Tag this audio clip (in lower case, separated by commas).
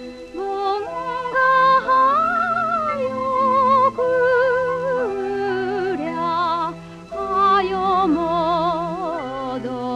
music, lullaby